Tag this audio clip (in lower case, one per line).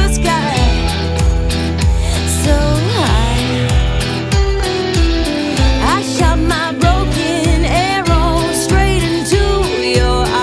music